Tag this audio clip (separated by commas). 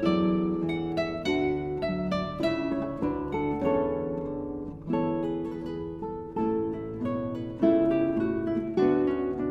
Guitar, Plucked string instrument, Acoustic guitar, Music, Strum, Musical instrument